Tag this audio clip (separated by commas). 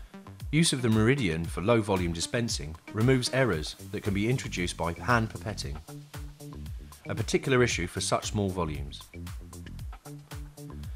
Speech, Music